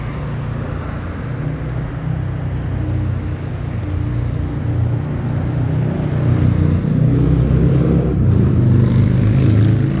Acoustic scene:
street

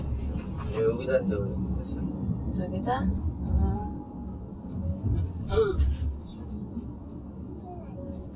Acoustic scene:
car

